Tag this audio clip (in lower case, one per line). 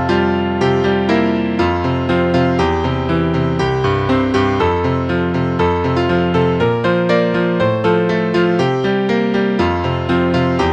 music